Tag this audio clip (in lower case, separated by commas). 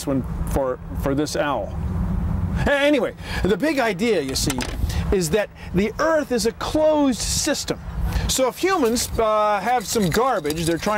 speech